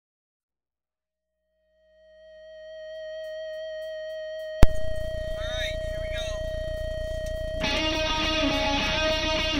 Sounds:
speech
music

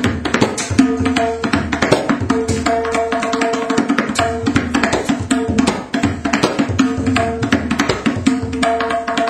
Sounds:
playing tabla

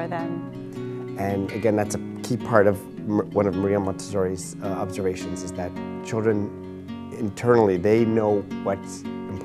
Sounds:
speech
music

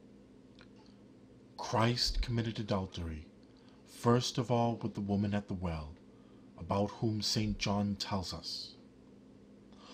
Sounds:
speech

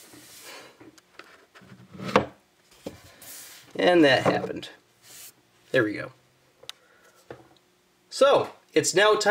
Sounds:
speech

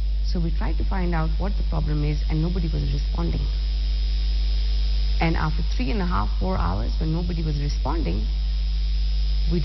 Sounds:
speech

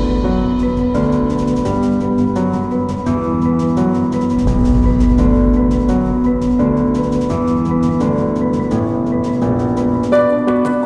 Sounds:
music

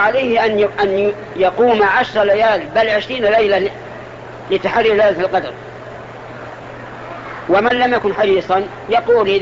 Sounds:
speech

